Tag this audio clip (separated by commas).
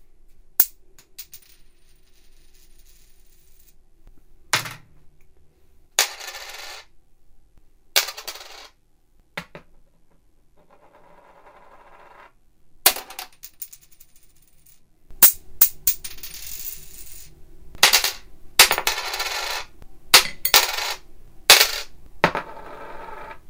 Coin (dropping), home sounds